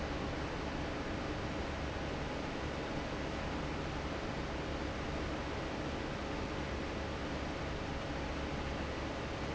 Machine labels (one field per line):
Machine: fan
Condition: normal